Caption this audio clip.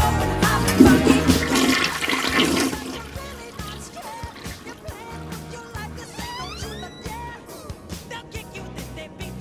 A toilet flushes during the middle of beat it by Michael Jackson